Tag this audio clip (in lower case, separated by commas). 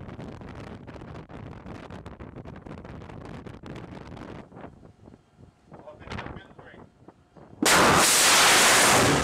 missile launch